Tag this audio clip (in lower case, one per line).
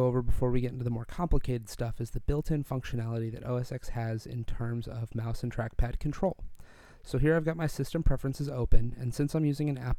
speech